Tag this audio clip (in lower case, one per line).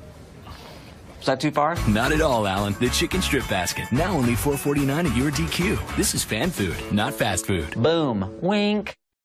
music
speech